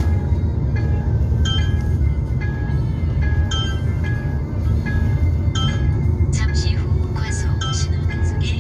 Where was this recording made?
in a car